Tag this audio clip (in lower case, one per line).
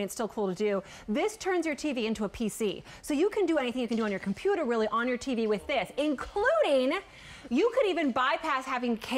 speech